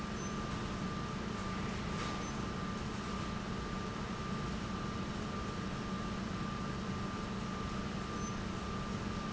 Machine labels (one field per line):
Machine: pump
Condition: normal